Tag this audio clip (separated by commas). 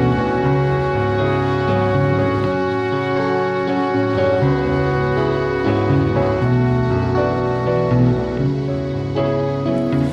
Music